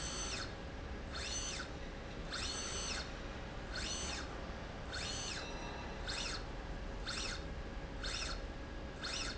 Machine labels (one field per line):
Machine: slide rail